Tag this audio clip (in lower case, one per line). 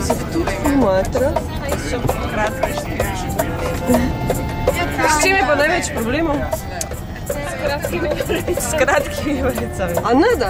speech
music